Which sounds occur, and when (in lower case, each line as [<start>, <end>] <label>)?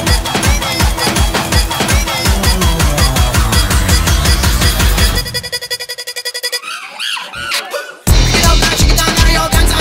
[0.00, 9.80] music
[6.59, 8.05] shout
[8.38, 9.80] singing